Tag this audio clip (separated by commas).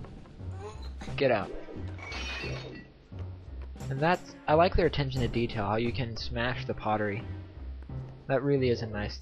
Speech